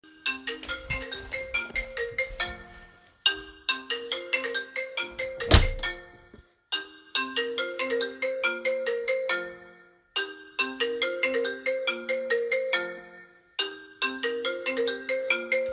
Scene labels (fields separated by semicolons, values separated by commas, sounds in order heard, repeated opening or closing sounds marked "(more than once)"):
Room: living room, hallway; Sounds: phone ringing, footsteps, door